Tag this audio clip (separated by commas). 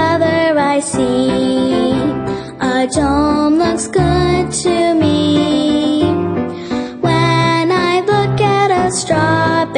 Jingle (music)